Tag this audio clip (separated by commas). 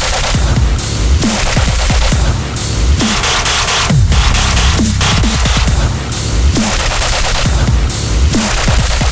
Music, Dubstep